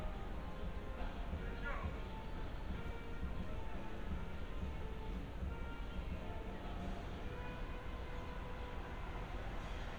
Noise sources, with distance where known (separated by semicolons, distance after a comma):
music from a fixed source, far; person or small group talking